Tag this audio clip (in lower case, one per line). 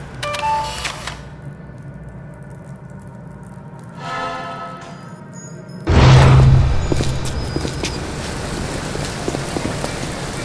music
inside a large room or hall